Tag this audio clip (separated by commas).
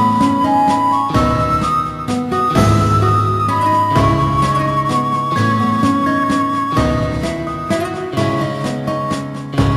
Music, Exciting music